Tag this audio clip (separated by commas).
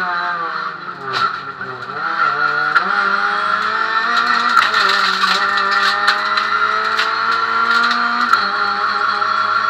Car, Vehicle, Motor vehicle (road)